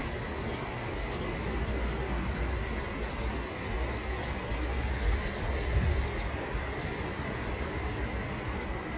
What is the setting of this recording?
park